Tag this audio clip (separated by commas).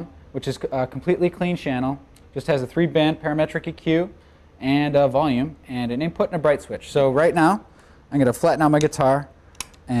Speech